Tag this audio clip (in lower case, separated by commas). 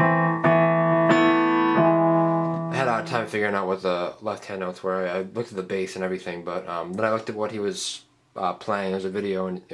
speech, musical instrument, piano, keyboard (musical), music